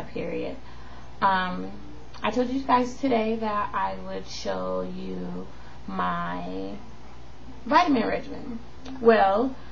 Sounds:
Speech

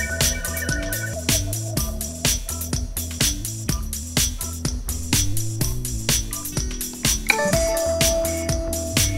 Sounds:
Music

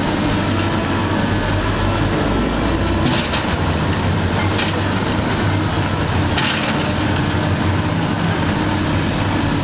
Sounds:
Vehicle, outside, urban or man-made

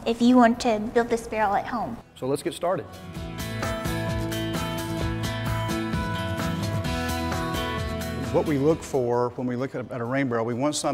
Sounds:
Music, Speech

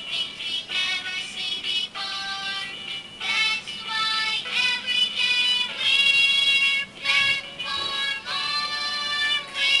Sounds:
Music, Singing

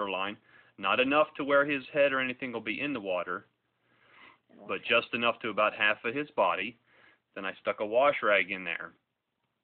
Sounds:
Speech, inside a small room

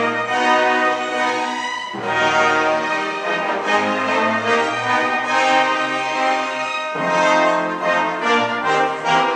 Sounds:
Music, inside a large room or hall

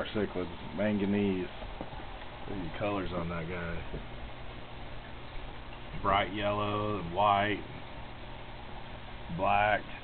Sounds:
Speech

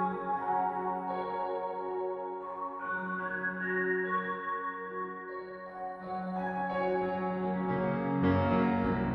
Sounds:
Music, Lullaby

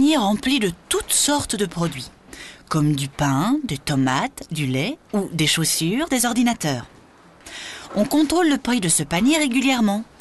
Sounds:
Speech

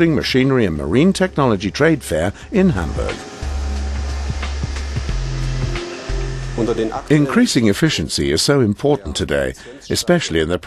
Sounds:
Speech, Music

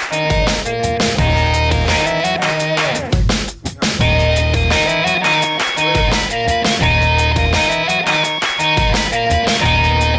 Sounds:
Music

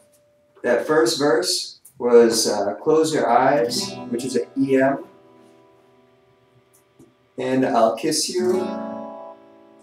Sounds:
Musical instrument, Plucked string instrument, Music, Speech, Strum, Guitar

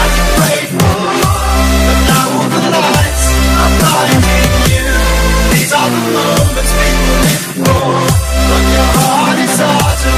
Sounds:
Music

